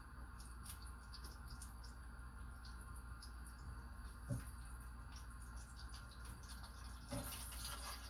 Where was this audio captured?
in a kitchen